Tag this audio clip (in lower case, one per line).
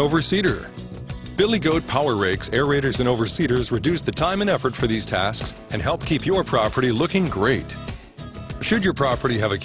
music
speech